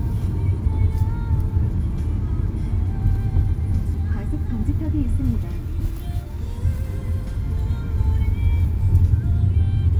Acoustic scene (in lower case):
car